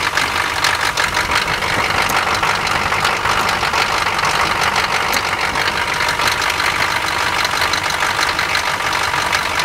The motor of an old vehicle rattles as it runs